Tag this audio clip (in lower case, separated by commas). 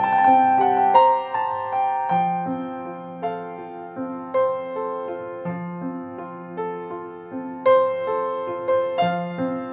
music